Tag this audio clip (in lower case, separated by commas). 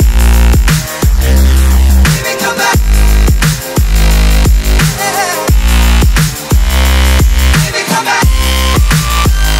music, drum and bass